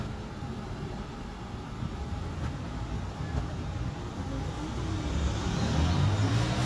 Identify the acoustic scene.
street